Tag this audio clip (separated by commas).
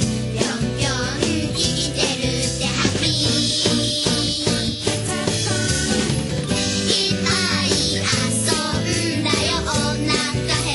Music